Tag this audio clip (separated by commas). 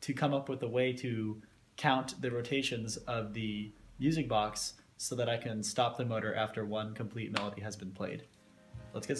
Music, Speech